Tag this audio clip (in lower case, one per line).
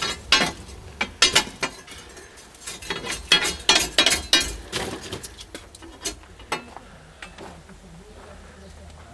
speech